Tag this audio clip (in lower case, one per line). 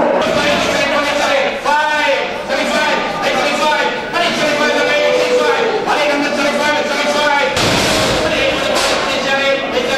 livestock
cattle